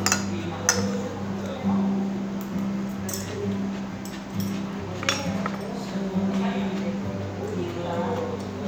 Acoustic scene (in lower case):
restaurant